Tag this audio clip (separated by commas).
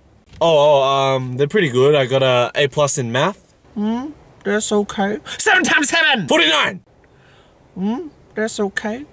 Speech